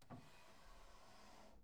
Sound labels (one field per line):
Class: drawer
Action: opening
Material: wooden